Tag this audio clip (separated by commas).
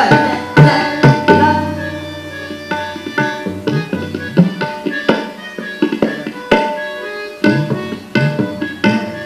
Music, Classical music, Musical instrument, Percussion, Tabla